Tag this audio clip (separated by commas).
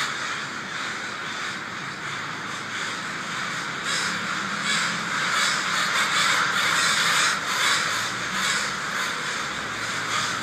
crow cawing